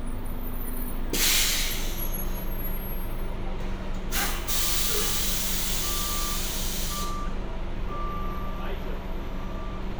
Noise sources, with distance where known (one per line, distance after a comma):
reverse beeper, near